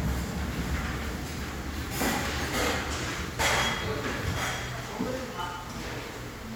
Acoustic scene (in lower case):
restaurant